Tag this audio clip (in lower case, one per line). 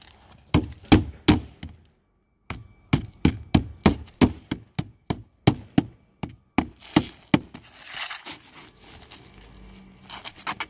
hammering nails